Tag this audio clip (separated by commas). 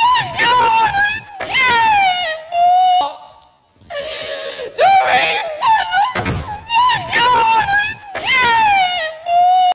Speech, Door